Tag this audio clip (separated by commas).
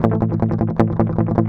Music, Strum, Musical instrument, Guitar, Plucked string instrument